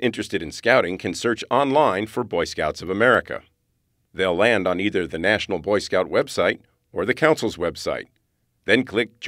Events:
0.0s-9.2s: background noise
0.0s-3.5s: man speaking
4.1s-6.5s: man speaking
6.6s-6.7s: clicking
6.6s-6.8s: breathing
6.8s-6.9s: clicking
6.9s-8.1s: man speaking
8.0s-8.2s: clicking
8.6s-9.1s: man speaking
9.2s-9.2s: man speaking

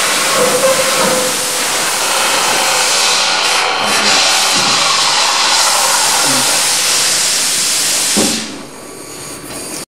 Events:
0.0s-8.6s: liquid
0.0s-9.9s: mechanisms
6.3s-6.6s: man speaking
8.2s-8.6s: tap

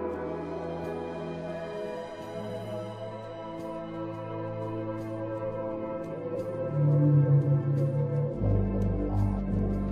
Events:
0.0s-9.9s: music
9.0s-9.5s: human voice

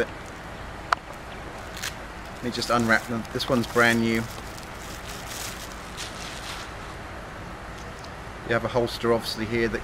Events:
0.0s-9.8s: mechanisms
0.0s-9.8s: wind
0.2s-0.3s: tick
0.9s-0.9s: tick
1.1s-1.1s: tick
1.5s-1.9s: velcro
2.3s-4.2s: male speech
2.5s-5.7s: crinkling
6.0s-6.6s: crinkling
7.7s-8.1s: crinkling
8.4s-9.8s: male speech

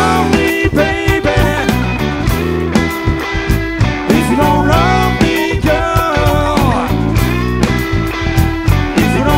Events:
0.0s-1.9s: male singing
0.0s-9.3s: music
4.0s-6.9s: male singing

